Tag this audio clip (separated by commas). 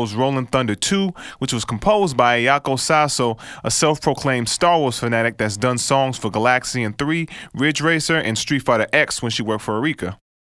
Speech